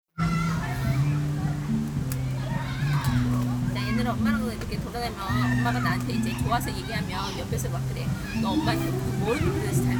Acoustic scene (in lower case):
park